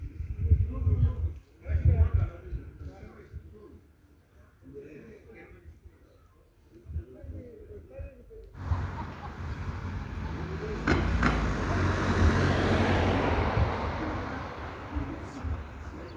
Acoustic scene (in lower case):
residential area